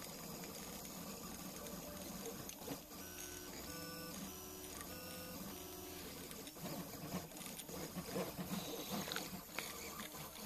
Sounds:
printer

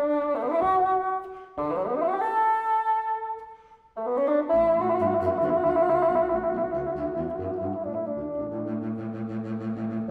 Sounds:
playing bassoon

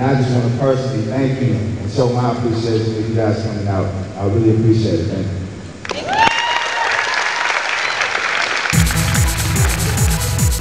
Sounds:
music
applause
speech

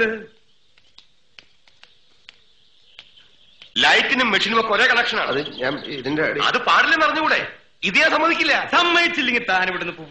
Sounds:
speech
outside, rural or natural

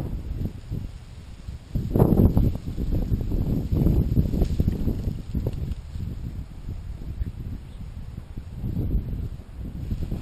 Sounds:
outside, rural or natural

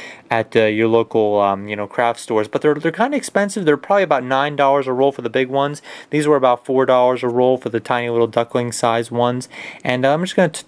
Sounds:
speech

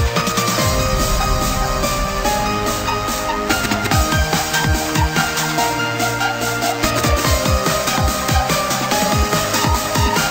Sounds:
techno
music

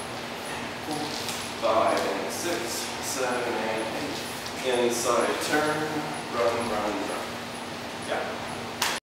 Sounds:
speech

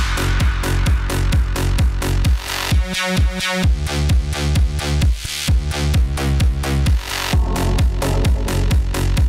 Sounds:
music

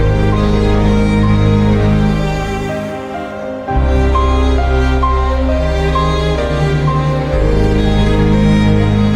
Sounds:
music

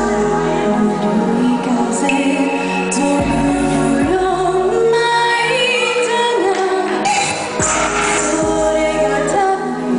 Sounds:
music
female singing

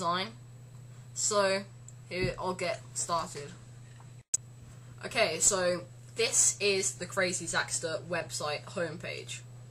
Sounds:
speech
inside a small room

